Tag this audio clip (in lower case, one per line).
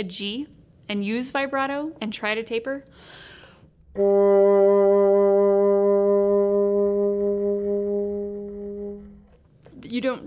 playing bassoon